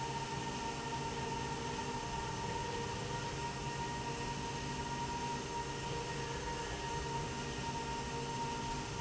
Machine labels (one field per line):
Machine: slide rail